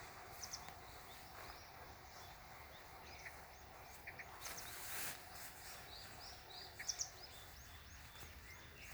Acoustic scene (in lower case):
park